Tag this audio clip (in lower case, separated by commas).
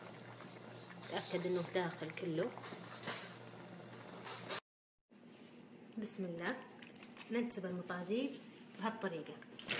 speech